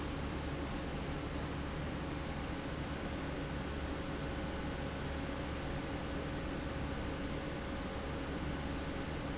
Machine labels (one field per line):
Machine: pump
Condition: normal